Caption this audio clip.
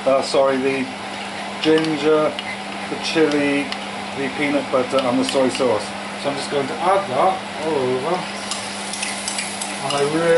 Man speaking with stirring and sizzling noises in background